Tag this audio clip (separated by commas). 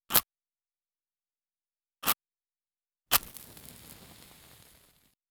Fire